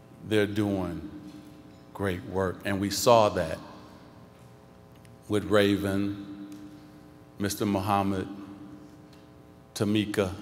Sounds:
narration, speech, man speaking

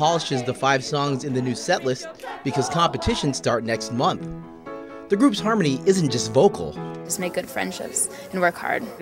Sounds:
speech, music

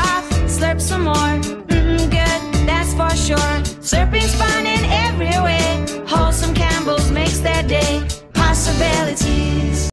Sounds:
music

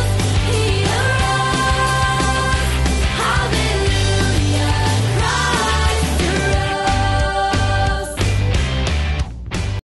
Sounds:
music, happy music

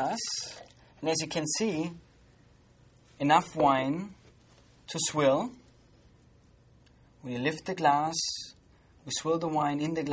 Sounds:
speech

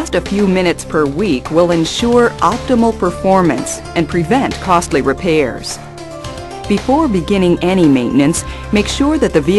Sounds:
speech, music

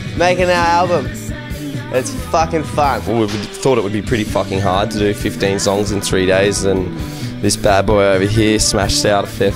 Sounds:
music, speech

